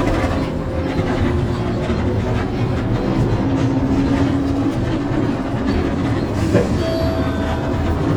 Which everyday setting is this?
bus